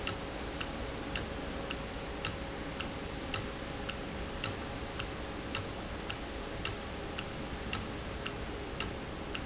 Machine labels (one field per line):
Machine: valve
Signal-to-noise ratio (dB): -6 dB